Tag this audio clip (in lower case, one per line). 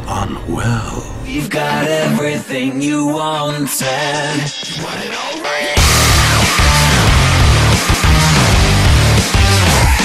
exciting music
speech
music